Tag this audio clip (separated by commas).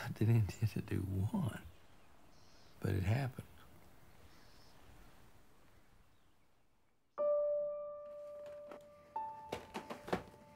Speech, Music